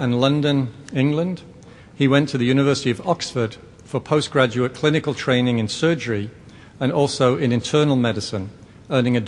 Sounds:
Speech, Male speech, monologue

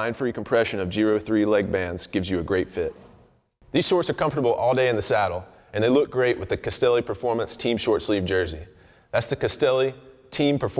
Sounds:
Speech

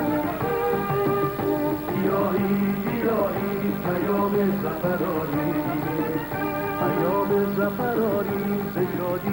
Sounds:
Middle Eastern music

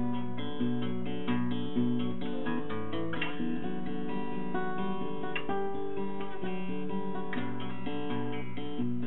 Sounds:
Plucked string instrument, Strum, Music, Musical instrument, Acoustic guitar, Guitar

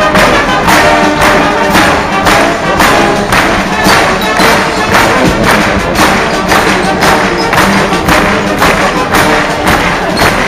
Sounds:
Music

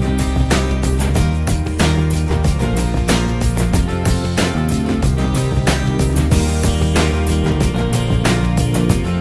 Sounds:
Music

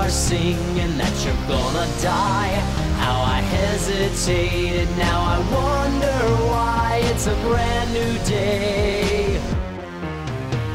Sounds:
Music

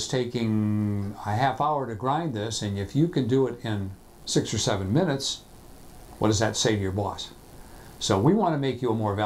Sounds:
Speech

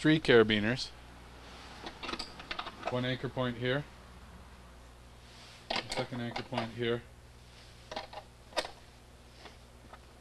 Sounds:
Speech

